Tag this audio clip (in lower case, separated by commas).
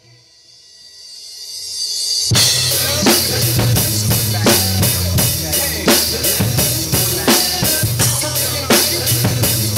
cymbal, drum, musical instrument, drum kit